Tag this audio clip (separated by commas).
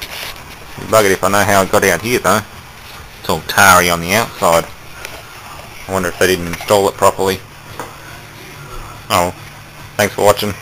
Speech